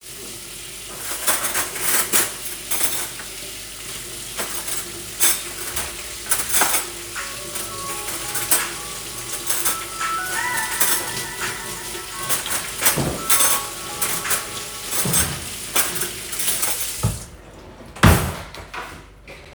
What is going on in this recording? Someone left a water tap on and the water was flowing, while I was sorting cutlery. At that moment, I got a phone call from my friend.